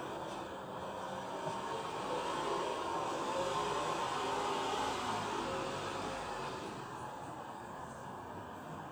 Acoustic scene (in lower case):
residential area